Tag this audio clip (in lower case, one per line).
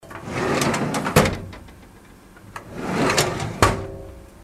drawer open or close
domestic sounds